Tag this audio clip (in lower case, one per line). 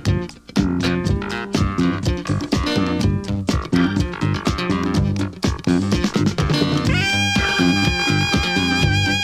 music